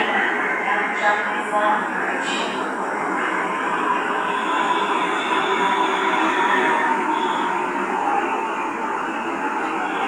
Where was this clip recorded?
in a subway station